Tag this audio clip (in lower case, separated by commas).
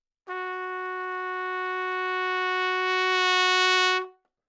brass instrument, music, trumpet, musical instrument